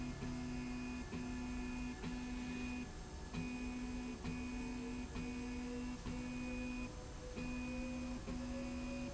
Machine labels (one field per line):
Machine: slide rail